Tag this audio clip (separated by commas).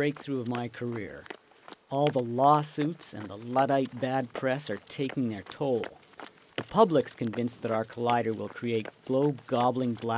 Speech, Run